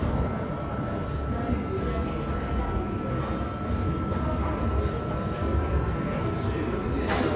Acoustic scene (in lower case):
subway station